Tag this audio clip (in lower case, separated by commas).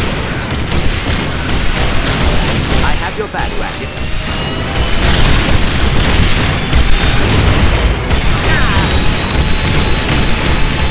speech